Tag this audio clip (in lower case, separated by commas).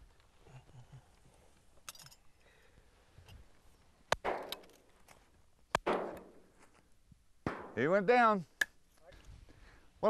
speech